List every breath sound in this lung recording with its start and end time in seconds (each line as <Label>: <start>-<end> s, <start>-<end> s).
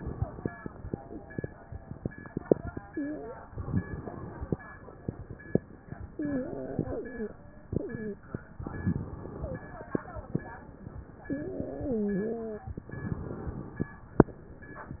Inhalation: 3.55-4.57 s, 8.63-9.70 s, 12.81-13.89 s
Wheeze: 2.83-3.49 s, 6.19-7.34 s, 7.76-8.26 s, 9.37-9.70 s, 11.27-12.73 s